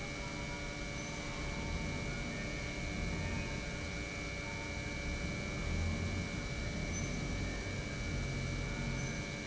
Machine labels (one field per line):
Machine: pump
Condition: normal